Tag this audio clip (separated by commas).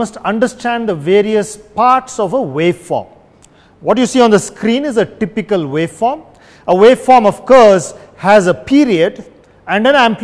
Speech